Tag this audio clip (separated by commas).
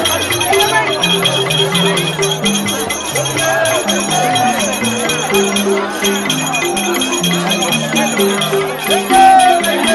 Speech, Music